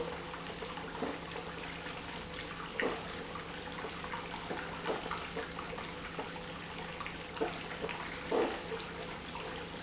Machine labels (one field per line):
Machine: pump